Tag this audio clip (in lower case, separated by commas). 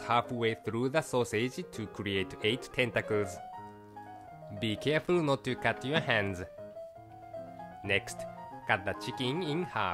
inside a small room, music, speech